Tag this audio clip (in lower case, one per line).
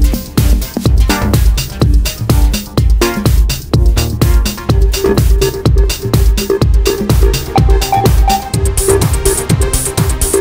electronic music
dubstep
electronic dance music
music
electronica